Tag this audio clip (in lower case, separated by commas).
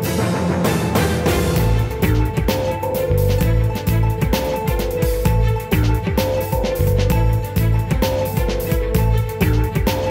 music